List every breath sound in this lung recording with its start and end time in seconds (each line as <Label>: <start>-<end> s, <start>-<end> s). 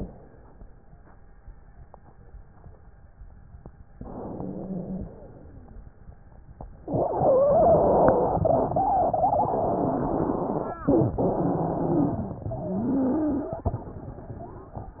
Inhalation: 3.98-5.49 s
Wheeze: 4.31-5.14 s